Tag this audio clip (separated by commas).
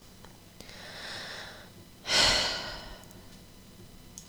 Breathing, Human voice, Respiratory sounds, Sigh